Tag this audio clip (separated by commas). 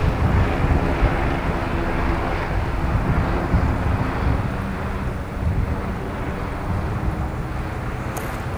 Vehicle, Aircraft, Engine